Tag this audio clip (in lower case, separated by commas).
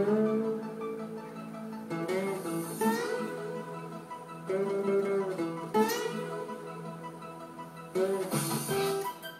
musical instrument, strum, music, guitar, plucked string instrument